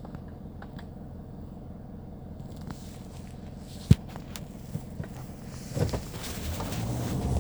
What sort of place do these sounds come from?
car